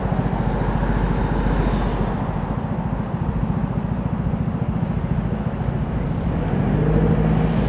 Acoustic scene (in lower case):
street